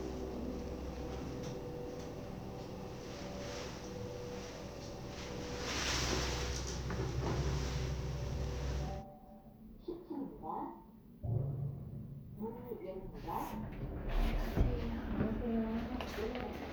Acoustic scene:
elevator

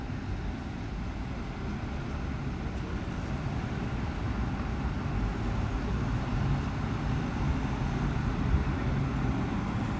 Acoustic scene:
street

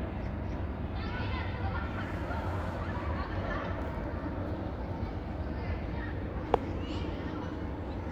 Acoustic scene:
park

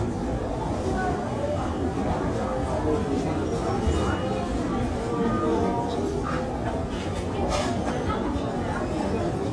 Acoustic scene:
crowded indoor space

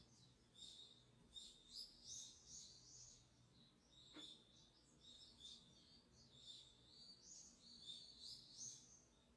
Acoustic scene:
park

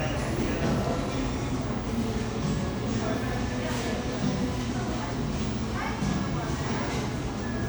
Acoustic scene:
cafe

